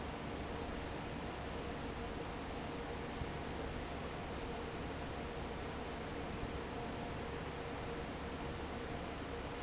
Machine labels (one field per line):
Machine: fan